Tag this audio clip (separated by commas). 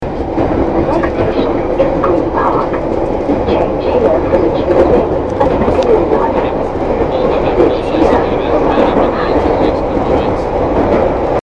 Vehicle, Rail transport, metro